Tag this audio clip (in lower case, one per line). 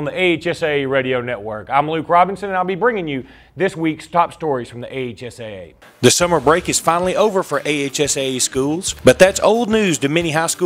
speech